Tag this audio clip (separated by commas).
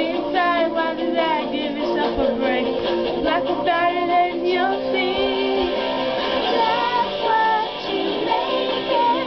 Female singing, Music, Child singing